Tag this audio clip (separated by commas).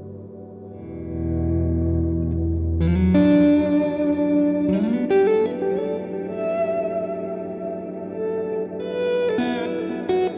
Bass guitar, Music